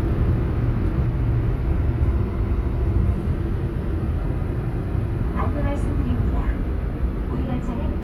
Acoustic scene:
subway train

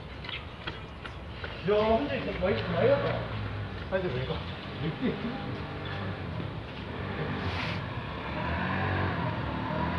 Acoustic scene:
residential area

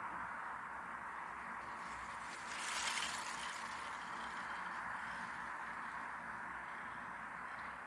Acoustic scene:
street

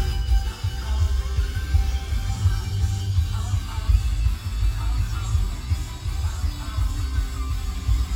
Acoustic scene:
car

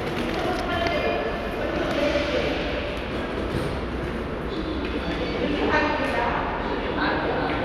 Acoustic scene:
subway station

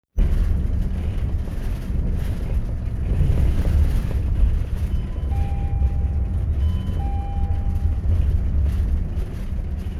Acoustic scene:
bus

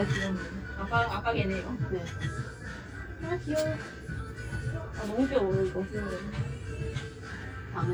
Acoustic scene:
cafe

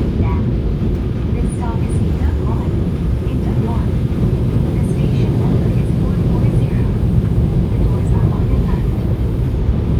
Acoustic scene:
subway train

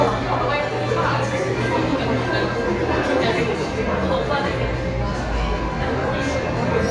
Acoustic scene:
crowded indoor space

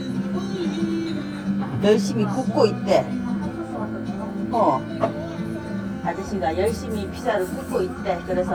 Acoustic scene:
restaurant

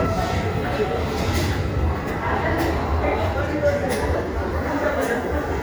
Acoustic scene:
subway station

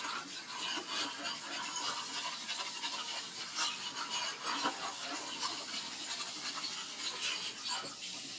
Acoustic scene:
kitchen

